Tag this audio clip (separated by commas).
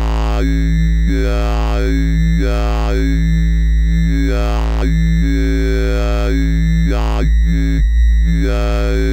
Electronic music